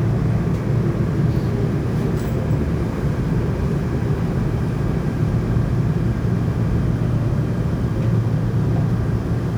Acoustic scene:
subway train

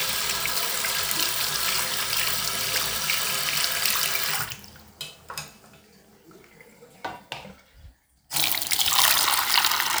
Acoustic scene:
restroom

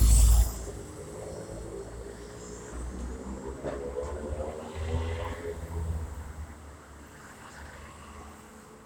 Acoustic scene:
street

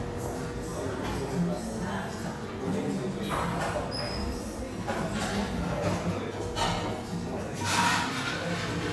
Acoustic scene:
cafe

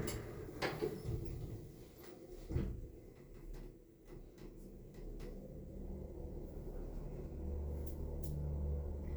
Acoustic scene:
elevator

